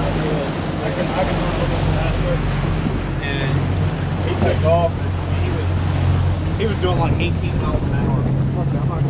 Waves crash and wind blows, people speak with engines in the distance